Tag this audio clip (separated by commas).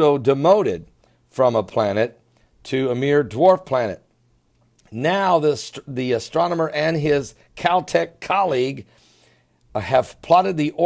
Speech